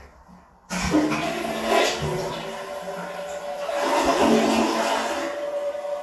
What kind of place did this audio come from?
restroom